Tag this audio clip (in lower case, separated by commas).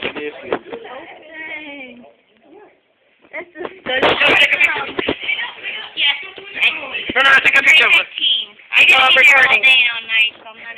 speech